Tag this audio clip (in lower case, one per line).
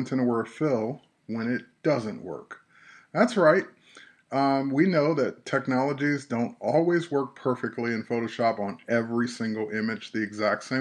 speech